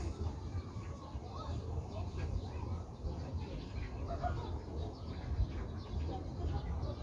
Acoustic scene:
park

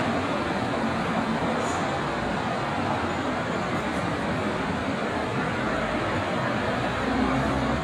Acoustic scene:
street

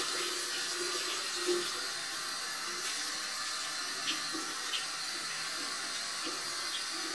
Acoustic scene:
restroom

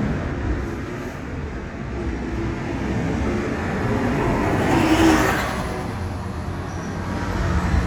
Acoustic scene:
street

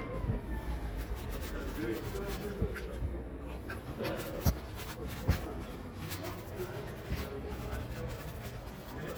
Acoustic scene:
residential area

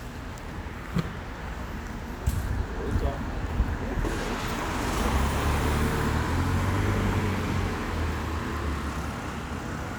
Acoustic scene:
residential area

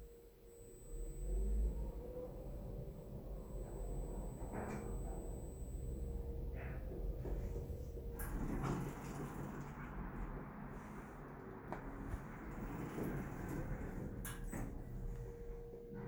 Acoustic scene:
elevator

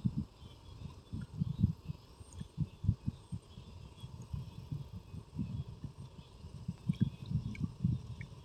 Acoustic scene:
park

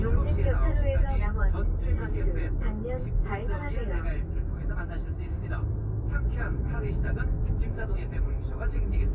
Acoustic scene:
car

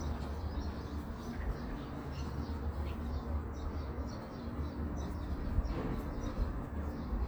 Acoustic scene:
residential area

